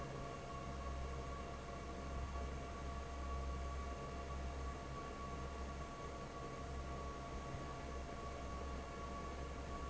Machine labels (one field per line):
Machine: fan